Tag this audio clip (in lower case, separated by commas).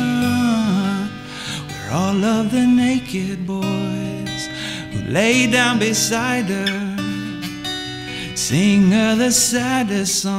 plucked string instrument, guitar, music, musical instrument, strum, electric guitar